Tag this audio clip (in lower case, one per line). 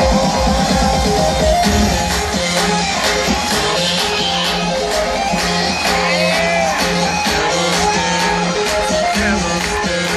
music
singing